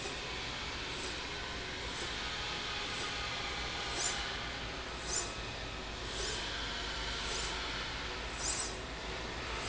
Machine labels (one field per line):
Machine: slide rail